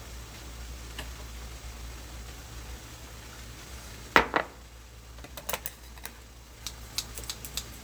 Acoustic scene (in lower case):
kitchen